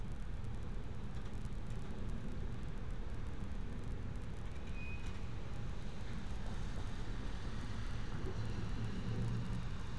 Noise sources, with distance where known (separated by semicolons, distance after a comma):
medium-sounding engine